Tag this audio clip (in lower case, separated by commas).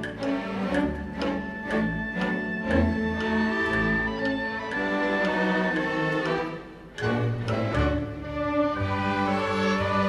music